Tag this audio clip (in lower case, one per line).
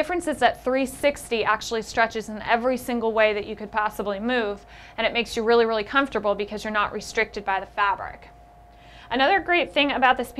speech